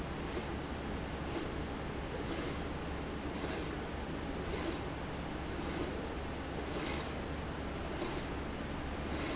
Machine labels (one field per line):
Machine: slide rail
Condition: abnormal